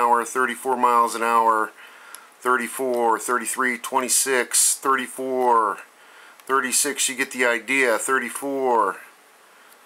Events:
[0.00, 1.64] male speech
[0.00, 9.85] mechanisms
[1.66, 2.37] breathing
[2.08, 2.21] clicking
[2.42, 5.79] male speech
[2.89, 3.00] clicking
[5.72, 5.79] clicking
[5.80, 6.37] breathing
[6.38, 6.46] clicking
[6.48, 8.93] male speech
[8.29, 8.41] generic impact sounds
[9.12, 9.72] surface contact
[9.67, 9.78] clicking

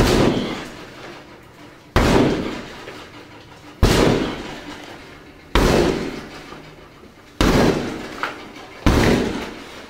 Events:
[0.00, 0.67] bang
[0.04, 9.85] background noise
[0.69, 1.74] generic impact sounds
[1.92, 2.96] bang
[2.73, 3.73] generic impact sounds
[3.77, 4.77] bang
[4.29, 5.53] generic impact sounds
[5.55, 6.46] bang
[6.24, 7.24] generic impact sounds
[7.37, 8.03] bang
[7.96, 8.84] generic impact sounds
[8.83, 9.67] bang
[9.51, 9.85] generic impact sounds

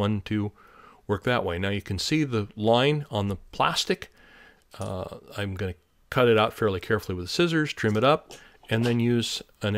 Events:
[0.00, 0.46] man speaking
[0.00, 9.75] background noise
[0.51, 1.04] breathing
[1.04, 4.09] man speaking
[4.07, 4.63] breathing
[4.71, 5.76] man speaking
[6.09, 8.17] man speaking
[8.22, 8.64] breathing
[8.59, 9.38] man speaking
[9.60, 9.75] man speaking

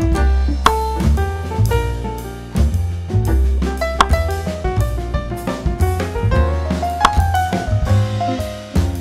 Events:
[0.00, 9.00] video game sound
[0.53, 0.94] sound effect
[3.90, 4.29] sound effect
[6.92, 7.37] sound effect

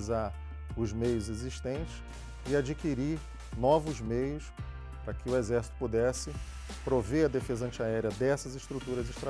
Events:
[0.00, 0.27] man speaking
[0.00, 9.25] music
[0.67, 1.99] man speaking
[2.00, 3.83] artillery fire
[2.39, 3.21] man speaking
[3.50, 4.45] man speaking
[5.04, 5.64] man speaking
[5.78, 6.39] man speaking
[6.14, 7.72] artillery fire
[6.63, 9.25] man speaking
[8.58, 9.25] artillery fire

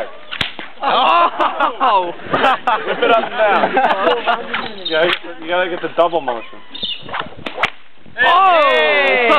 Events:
[0.00, 9.35] background noise
[0.34, 0.72] whip
[0.81, 1.21] human voice
[1.07, 2.14] laughter
[1.39, 1.92] man speaking
[2.22, 2.60] wind noise (microphone)
[2.30, 2.80] laughter
[2.31, 6.42] man speaking
[3.12, 3.42] laughter
[3.65, 4.46] laughter
[4.52, 4.69] whip
[4.62, 5.07] chirp
[4.91, 5.22] whip
[5.97, 6.47] chirp
[6.73, 7.07] chirp
[6.74, 6.91] wind noise (microphone)
[7.01, 7.46] wind noise (microphone)
[7.01, 7.76] whip
[8.02, 8.24] wind noise (microphone)
[8.16, 9.35] man speaking
[8.17, 9.28] human voice

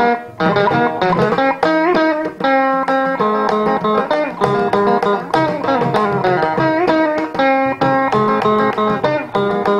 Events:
[0.00, 9.75] music

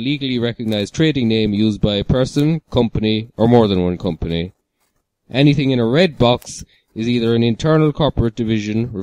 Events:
[0.00, 4.52] male speech
[0.00, 9.02] background noise
[4.75, 4.98] generic impact sounds
[5.23, 6.62] male speech
[6.65, 6.86] breathing
[6.93, 9.02] male speech

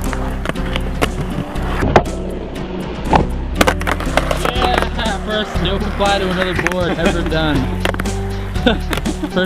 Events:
[0.00, 9.45] music
[0.11, 1.97] skateboard
[2.00, 3.54] sound effect
[3.61, 9.45] skateboard
[4.42, 7.59] male speech
[8.54, 8.84] giggle

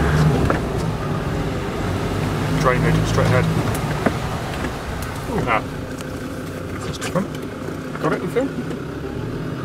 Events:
[0.01, 9.64] car
[2.51, 3.45] man speaking
[5.23, 5.60] man speaking
[6.66, 7.21] man speaking
[7.86, 8.52] man speaking

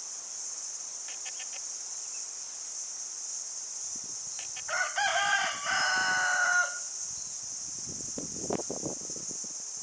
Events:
[0.00, 9.82] cricket
[4.69, 6.83] cock-a-doodle-doo
[7.15, 7.48] bird song
[7.66, 9.82] wind noise (microphone)

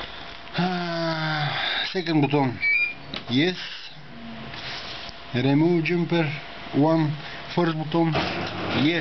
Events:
[0.00, 9.00] mechanisms
[0.55, 1.58] man speaking
[1.91, 2.60] man speaking
[2.56, 2.96] brief tone
[3.08, 3.21] tick
[3.21, 3.90] man speaking
[4.07, 4.47] brief tone
[4.52, 5.11] surface contact
[5.01, 5.14] tick
[5.27, 6.42] man speaking
[6.72, 7.18] man speaking
[7.50, 8.16] man speaking
[8.70, 9.00] man speaking

